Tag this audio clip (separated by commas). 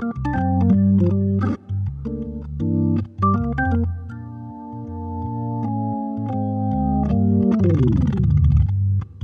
Electronic organ, Organ